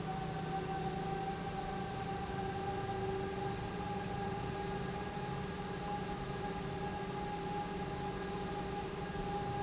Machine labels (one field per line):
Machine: pump